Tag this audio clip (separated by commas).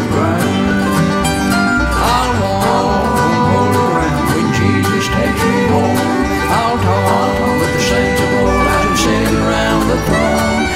Bluegrass, Music